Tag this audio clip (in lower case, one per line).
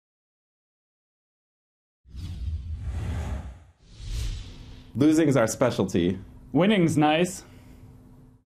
conversation
man speaking
speech